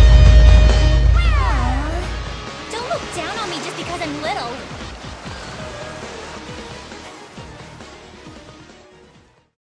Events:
[0.00, 2.39] sound effect
[0.00, 9.45] waves
[0.00, 9.51] music
[0.00, 9.52] video game sound
[1.08, 2.02] human voice
[2.69, 4.60] female speech

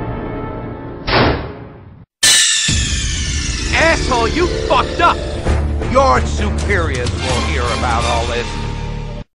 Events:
[0.00, 2.03] video game sound
[0.01, 1.99] music
[2.17, 9.17] music
[2.19, 9.17] video game sound
[3.61, 5.11] male speech
[5.88, 7.08] male speech
[7.28, 8.48] male speech

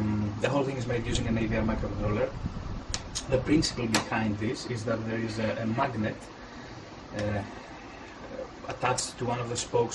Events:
[0.00, 2.33] male speech
[0.00, 9.94] mechanisms
[2.90, 3.19] generic impact sounds
[3.14, 6.29] male speech
[3.90, 4.08] generic impact sounds
[7.10, 7.60] male speech
[7.12, 7.24] generic impact sounds
[8.02, 8.15] tick
[8.16, 8.45] male speech
[8.61, 9.94] male speech

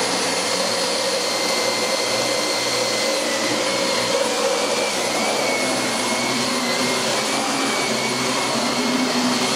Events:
[0.00, 9.55] vacuum cleaner

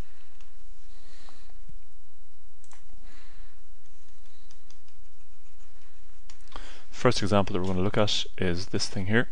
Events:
[0.00, 9.31] background noise
[0.29, 0.53] computer keyboard
[0.85, 1.69] breathing
[2.62, 2.87] computer keyboard
[2.97, 3.64] breathing
[3.86, 6.56] computer keyboard
[6.44, 6.92] breathing
[7.45, 7.64] computer keyboard

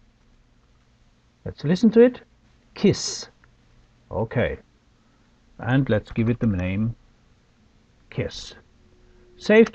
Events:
[0.00, 9.74] mechanisms
[0.19, 0.29] clicking
[0.71, 0.87] clicking
[1.46, 2.27] male speech
[2.77, 3.32] male speech
[3.40, 3.50] clicking
[4.12, 4.64] male speech
[4.85, 5.46] breathing
[5.60, 6.96] male speech
[5.62, 5.76] clicking
[6.42, 6.51] clicking
[8.11, 8.65] male speech
[8.95, 9.29] breathing
[9.39, 9.74] male speech
[9.66, 9.74] clicking

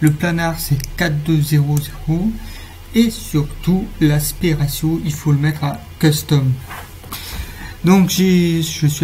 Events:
[0.01, 0.69] man speaking
[0.03, 9.03] background noise
[0.87, 2.37] man speaking
[2.95, 6.44] man speaking
[7.72, 9.03] man speaking

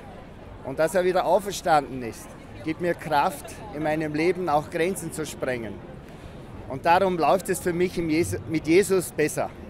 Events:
[0.00, 9.65] background noise
[0.00, 9.65] hubbub
[0.60, 2.27] man speaking
[2.60, 3.58] man speaking
[3.68, 5.70] man speaking
[5.90, 6.55] surface contact
[6.01, 6.10] clicking
[6.65, 8.35] man speaking
[8.47, 9.06] man speaking
[9.16, 9.44] man speaking

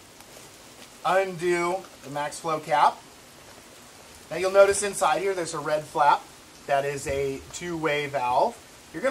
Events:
[0.00, 9.10] rain
[0.09, 0.16] tick
[0.21, 0.46] surface contact
[0.71, 0.81] generic impact sounds
[0.94, 1.74] male speech
[1.66, 2.01] generic impact sounds
[1.90, 2.94] male speech
[3.33, 3.68] surface contact
[3.90, 4.18] surface contact
[4.23, 6.19] male speech
[6.61, 7.35] male speech
[6.98, 7.11] generic impact sounds
[7.46, 7.58] generic impact sounds
[7.53, 8.50] male speech

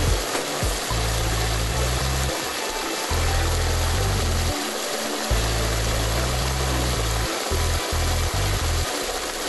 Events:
[0.00, 9.45] gush
[0.00, 9.45] music

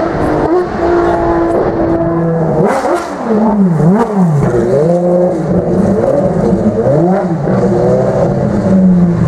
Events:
[0.00, 9.25] race car

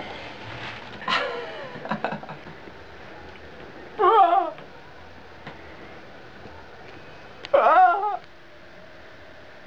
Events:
[0.00, 9.65] mechanisms
[0.35, 1.02] generic impact sounds
[1.02, 2.71] laughter
[3.20, 3.33] generic impact sounds
[3.56, 3.74] generic impact sounds
[3.95, 4.54] human sounds
[4.54, 4.70] generic impact sounds
[5.42, 5.57] generic impact sounds
[6.37, 6.52] generic impact sounds
[6.86, 7.00] generic impact sounds
[7.39, 7.50] generic impact sounds
[7.50, 8.22] human sounds
[8.18, 8.26] tick

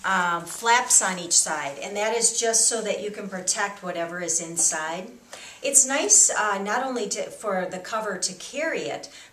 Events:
[0.00, 0.42] female speech
[0.00, 9.32] background noise
[0.38, 0.62] generic impact sounds
[0.55, 5.14] female speech
[4.48, 4.64] generic impact sounds
[5.25, 5.58] breathing
[5.58, 9.05] female speech
[9.05, 9.31] breathing

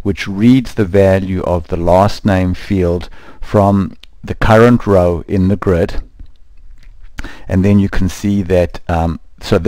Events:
[0.00, 3.06] man speaking
[0.00, 9.65] mechanisms
[3.06, 3.41] breathing
[3.44, 3.92] man speaking
[3.93, 4.12] clicking
[4.23, 6.03] man speaking
[6.11, 6.40] clicking
[6.66, 7.17] human sounds
[7.17, 7.49] breathing
[7.50, 9.22] man speaking
[9.40, 9.65] man speaking

